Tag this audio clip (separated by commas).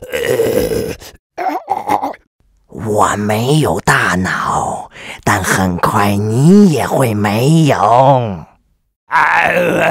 Speech, Groan